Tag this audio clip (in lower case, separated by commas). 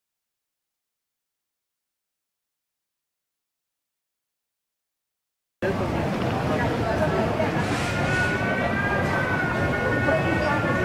speech